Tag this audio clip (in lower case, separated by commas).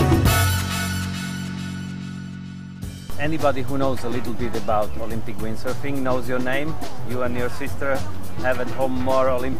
music, techno, speech